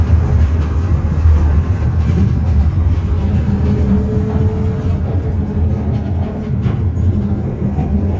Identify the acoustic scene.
bus